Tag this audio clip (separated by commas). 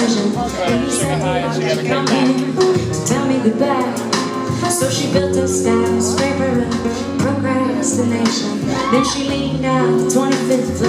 Music, Speech, Independent music